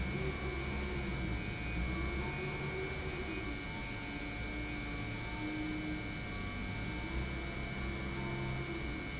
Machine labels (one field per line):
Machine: pump